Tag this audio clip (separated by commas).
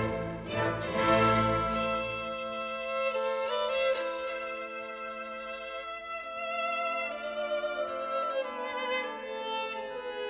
Music, Orchestra, Classical music, fiddle, Bowed string instrument